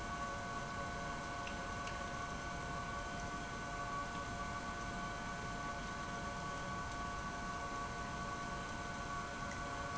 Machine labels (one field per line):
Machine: pump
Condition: abnormal